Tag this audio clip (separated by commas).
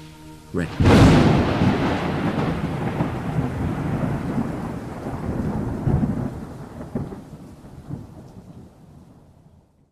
Thunder, Thunderstorm, Rain